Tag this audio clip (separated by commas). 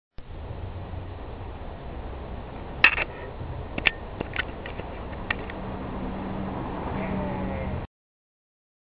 Sheep, Bleat